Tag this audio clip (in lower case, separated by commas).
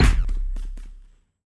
explosion, fireworks